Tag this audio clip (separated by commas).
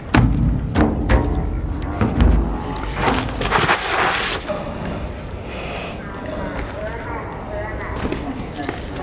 Run, Speech, outside, urban or man-made